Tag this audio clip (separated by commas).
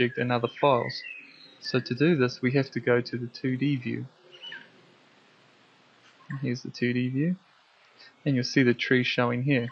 inside a small room, Speech